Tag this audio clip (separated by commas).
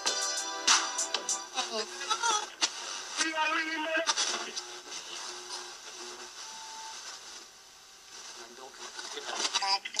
Radio, Speech, Music